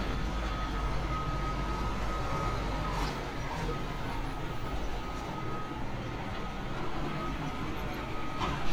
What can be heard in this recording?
reverse beeper